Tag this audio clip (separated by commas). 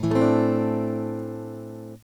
Musical instrument, Acoustic guitar, Music, Plucked string instrument, Guitar, Strum